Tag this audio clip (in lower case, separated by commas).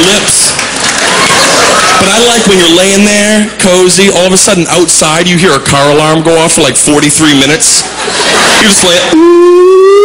speech